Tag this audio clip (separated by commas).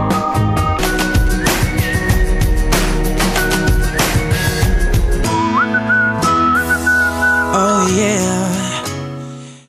Whistling, Music